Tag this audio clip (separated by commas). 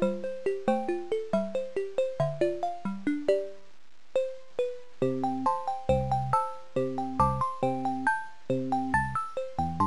Music